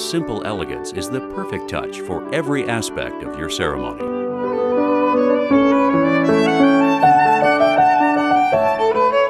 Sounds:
Music, Rhythm and blues, Speech

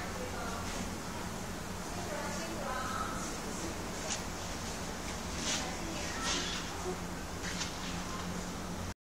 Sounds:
Speech

